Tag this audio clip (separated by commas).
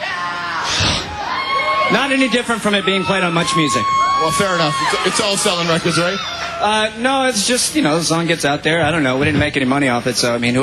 Speech